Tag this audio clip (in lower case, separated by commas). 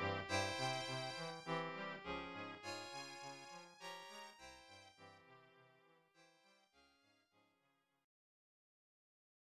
music